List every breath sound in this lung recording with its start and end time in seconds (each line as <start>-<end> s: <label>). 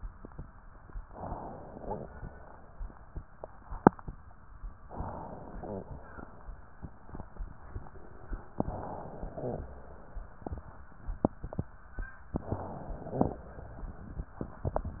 1.08-2.07 s: inhalation
1.84-2.08 s: wheeze
4.90-5.90 s: inhalation
5.61-5.87 s: wheeze
8.58-9.66 s: inhalation
9.40-9.63 s: wheeze
12.31-13.38 s: inhalation
13.14-13.38 s: crackles